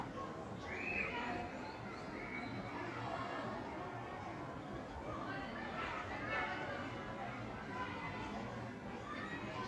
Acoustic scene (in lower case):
park